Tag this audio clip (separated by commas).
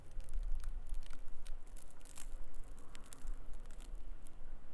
Crackle